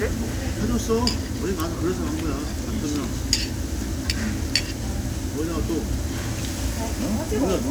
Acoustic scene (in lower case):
crowded indoor space